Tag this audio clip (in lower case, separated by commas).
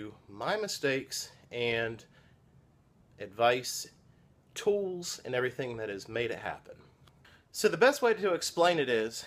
speech